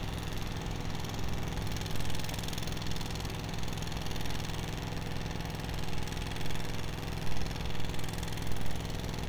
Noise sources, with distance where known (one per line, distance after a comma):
unidentified impact machinery, far